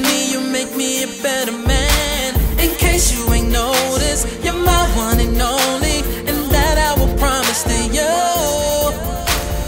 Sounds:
pop music
music

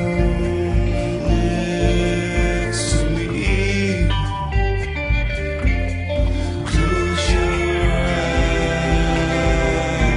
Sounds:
singing

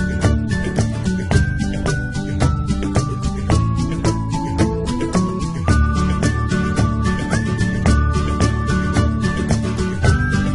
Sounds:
music

